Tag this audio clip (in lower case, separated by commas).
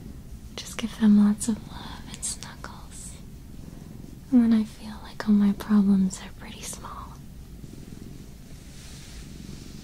cat purring